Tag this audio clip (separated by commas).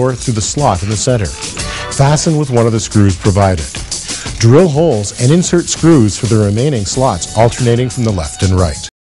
Speech, Music